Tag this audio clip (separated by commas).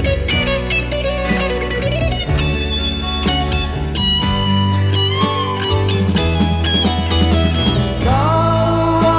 Music, Blues, Singing, Country